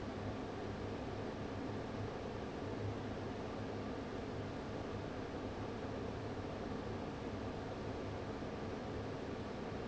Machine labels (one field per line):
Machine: fan